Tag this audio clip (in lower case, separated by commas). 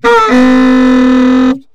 musical instrument, wind instrument, music